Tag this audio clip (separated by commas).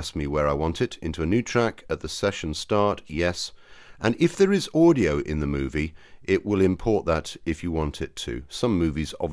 Speech